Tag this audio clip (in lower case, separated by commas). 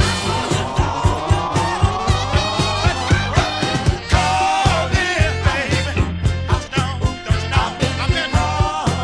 music, ska, funk